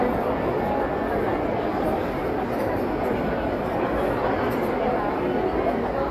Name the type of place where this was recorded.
crowded indoor space